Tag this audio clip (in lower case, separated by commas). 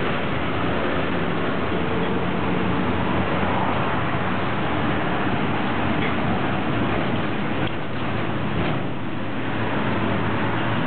driving buses, bus, vehicle